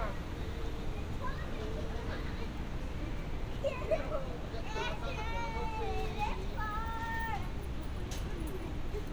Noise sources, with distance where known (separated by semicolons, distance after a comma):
person or small group shouting, near